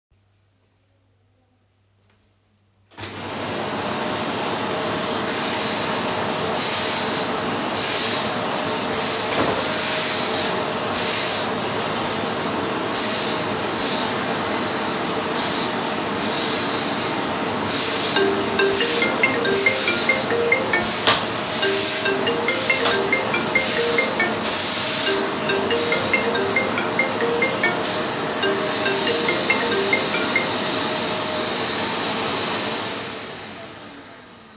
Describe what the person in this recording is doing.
I turned on the vacuum cleaner and while it was running my phone started ringing. I stopped the ringing and then turned off the vacuum cleaner.